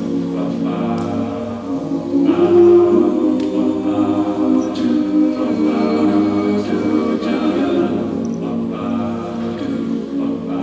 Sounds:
Music

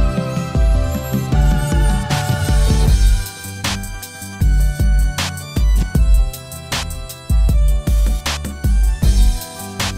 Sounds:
Music, fiddle, Musical instrument

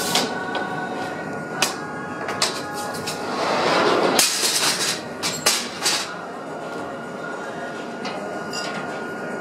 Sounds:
Music, Glass

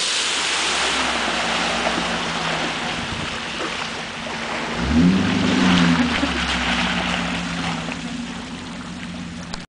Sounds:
Truck, Vehicle

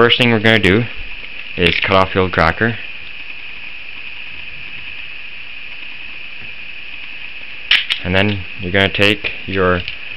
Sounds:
Speech

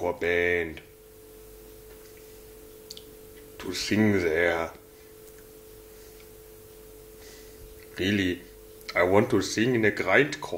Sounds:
inside a small room, Speech

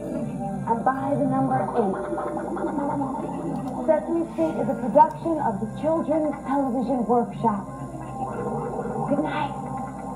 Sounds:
Music, Speech

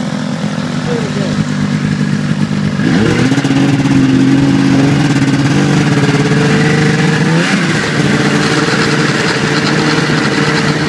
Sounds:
Vehicle, outside, rural or natural, Speech

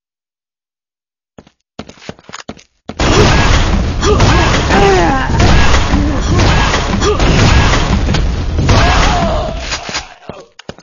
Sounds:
Boom

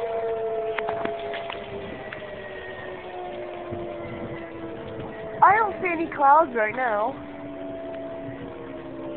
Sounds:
Civil defense siren, Siren

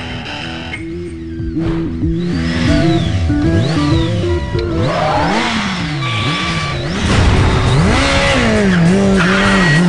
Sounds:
Music, Motorcycle, Vehicle

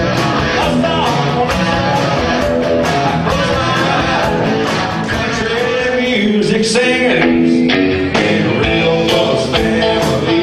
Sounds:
Musical instrument, Violin, Music, Bluegrass

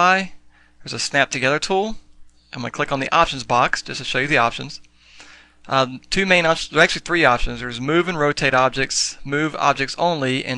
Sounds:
Speech

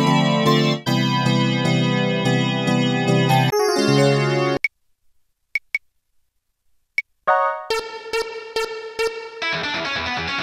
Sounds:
playing synthesizer

